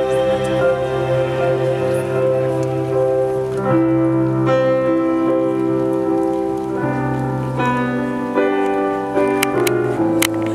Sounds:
Music

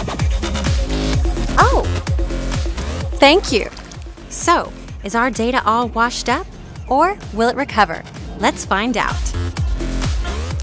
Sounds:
Speech, Music

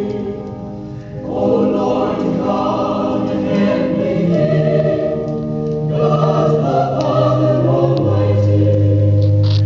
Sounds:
Music, Mantra

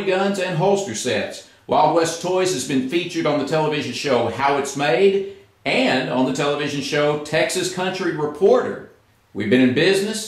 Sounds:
Speech

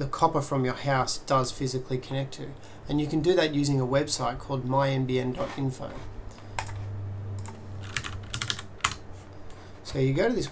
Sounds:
Computer keyboard, Typing

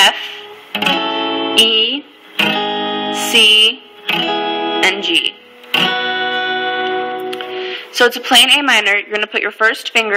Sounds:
Musical instrument, Guitar, Music, Speech

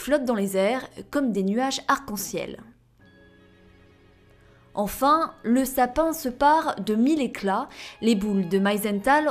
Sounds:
Speech, Music

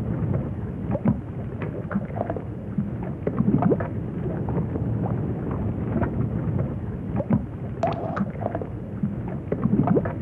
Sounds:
Drip

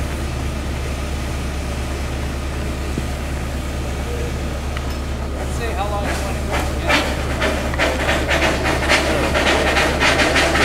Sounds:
Speech

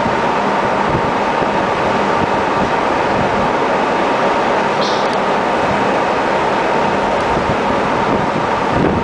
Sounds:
Wind, Water vehicle, Wind noise (microphone), speedboat

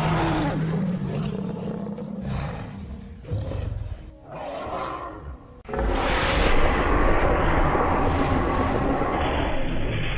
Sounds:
dinosaurs bellowing

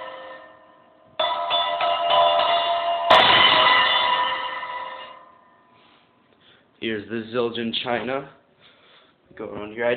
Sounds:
Music, Speech

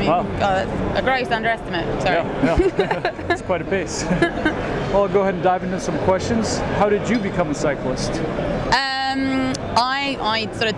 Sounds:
Speech

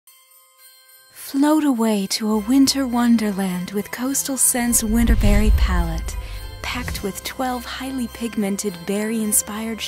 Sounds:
Jingle bell

